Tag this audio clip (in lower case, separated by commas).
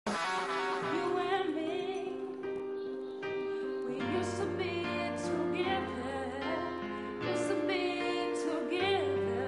singing